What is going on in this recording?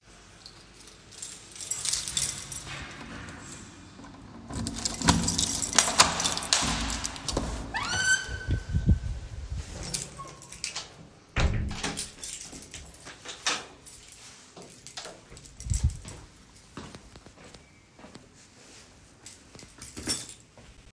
I unlocked the door to my room before opening it and going inside. Then I locked the door from the inside, walked further in and placed my keychain on a table.